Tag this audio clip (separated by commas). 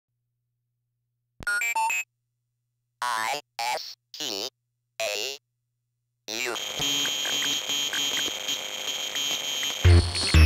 inside a small room, Speech, Music